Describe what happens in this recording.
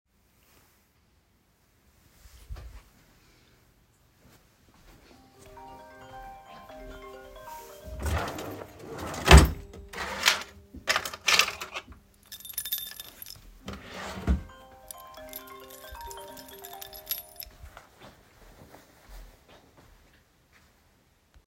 While the phone was ringing, I opened and closed a drawer. Then I opened another drawer, found my keys, and jingled them while walking away while the phone was still ringing.